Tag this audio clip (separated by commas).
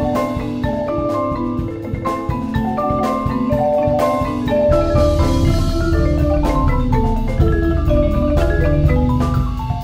playing vibraphone